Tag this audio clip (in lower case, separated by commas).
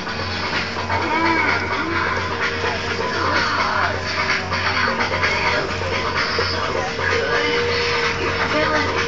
music